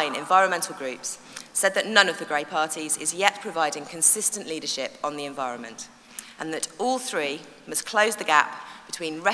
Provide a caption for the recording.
Adult woman speaking over microphone